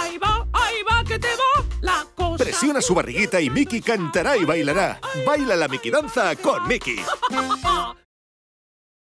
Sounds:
Music, Speech

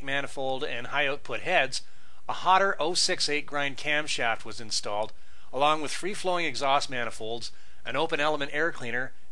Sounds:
Speech

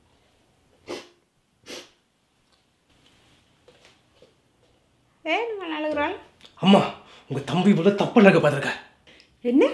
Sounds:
inside a small room, Speech

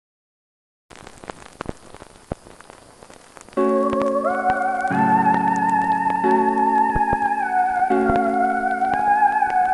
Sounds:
playing theremin

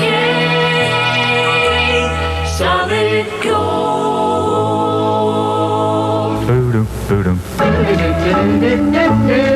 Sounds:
Radio, Music

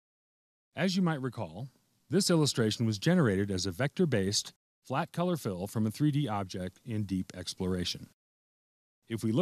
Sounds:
Speech

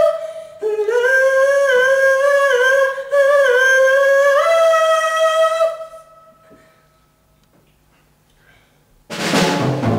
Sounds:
Singing, Music, inside a large room or hall

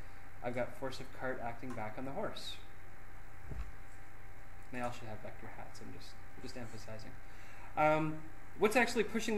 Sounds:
Speech

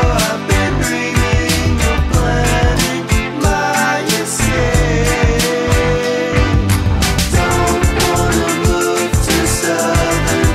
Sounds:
Music

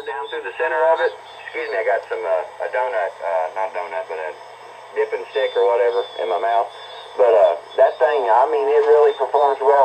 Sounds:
Speech, Radio

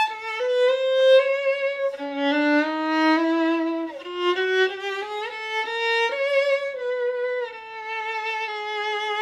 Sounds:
Music, Violin, Musical instrument

